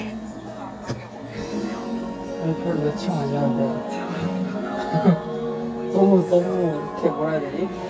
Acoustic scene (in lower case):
cafe